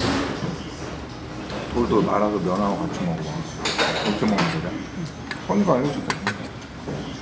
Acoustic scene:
restaurant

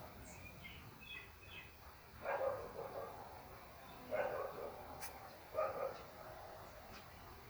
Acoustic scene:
park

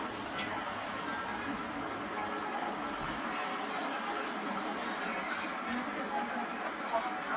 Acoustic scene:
bus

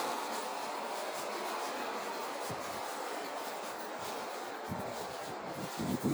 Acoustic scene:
residential area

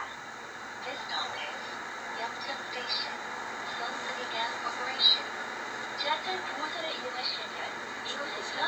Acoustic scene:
bus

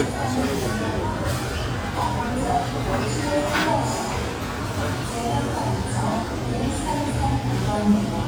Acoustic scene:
crowded indoor space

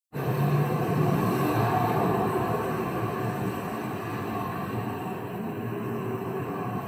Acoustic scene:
street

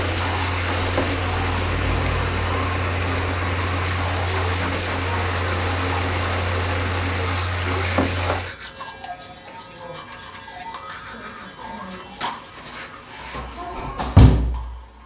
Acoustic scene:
restroom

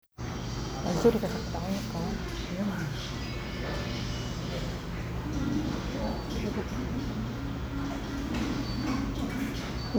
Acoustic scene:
crowded indoor space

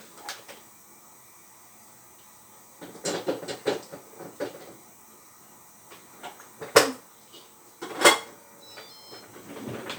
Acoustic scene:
kitchen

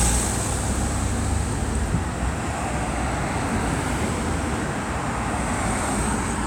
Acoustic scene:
street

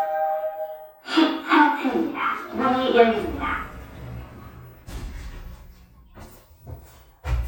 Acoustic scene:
elevator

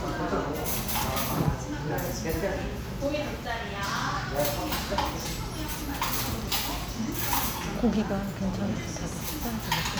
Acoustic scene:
restaurant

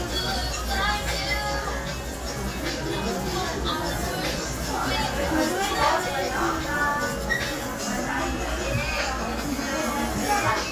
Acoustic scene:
crowded indoor space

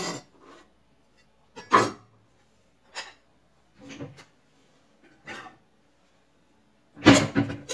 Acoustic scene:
kitchen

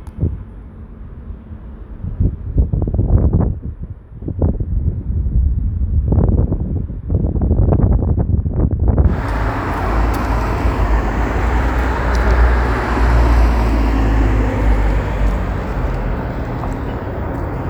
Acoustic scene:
street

